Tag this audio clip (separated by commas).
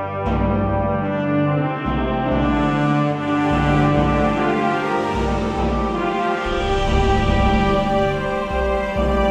Music, Background music